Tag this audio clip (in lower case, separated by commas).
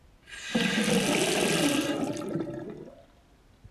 water, sink (filling or washing), home sounds